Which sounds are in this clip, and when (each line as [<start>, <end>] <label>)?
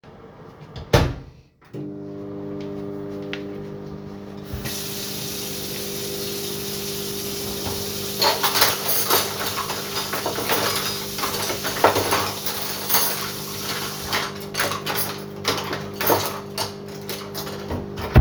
[0.86, 18.20] microwave
[4.60, 14.13] running water
[8.19, 18.20] cutlery and dishes